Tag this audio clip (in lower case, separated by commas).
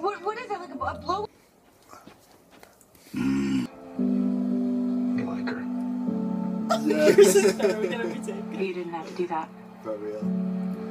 inside a small room, speech, music